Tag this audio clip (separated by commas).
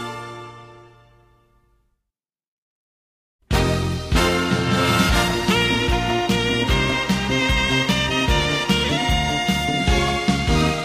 Music, Soundtrack music